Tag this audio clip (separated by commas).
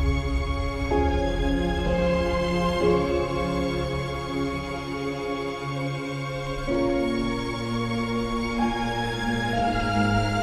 Music